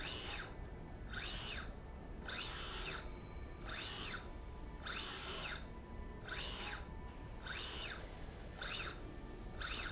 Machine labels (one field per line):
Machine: slide rail